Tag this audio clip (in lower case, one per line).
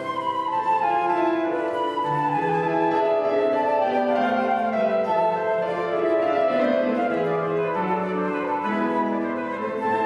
music
flute